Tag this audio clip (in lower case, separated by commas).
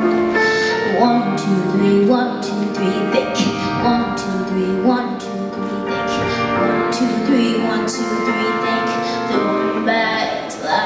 child singing, female singing, music